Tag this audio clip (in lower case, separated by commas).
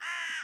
wild animals, animal, bird